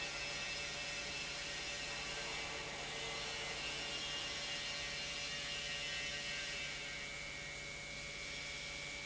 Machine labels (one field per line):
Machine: pump